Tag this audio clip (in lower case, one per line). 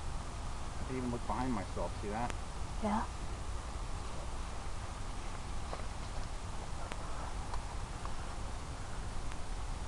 speech